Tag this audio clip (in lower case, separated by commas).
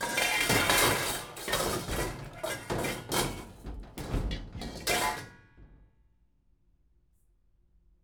dishes, pots and pans, domestic sounds